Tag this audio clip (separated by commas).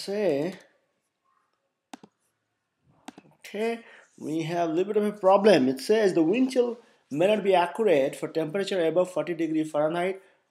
Speech